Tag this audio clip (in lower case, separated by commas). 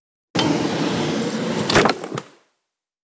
domestic sounds, drawer open or close